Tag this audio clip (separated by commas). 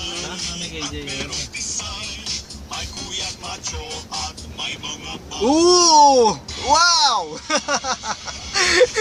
Speech, Car, Music, Vehicle, outside, urban or man-made